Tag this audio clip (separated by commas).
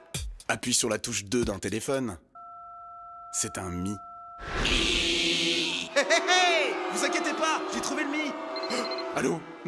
Music, Speech